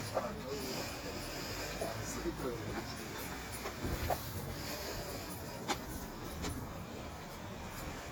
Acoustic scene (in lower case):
street